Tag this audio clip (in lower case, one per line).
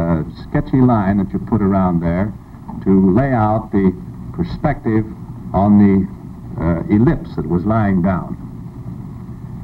speech